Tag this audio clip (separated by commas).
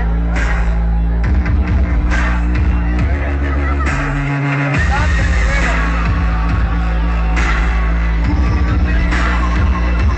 Electronic music, Music, Dubstep, Speech